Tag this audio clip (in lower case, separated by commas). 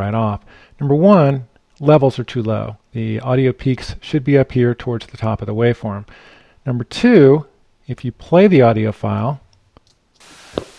speech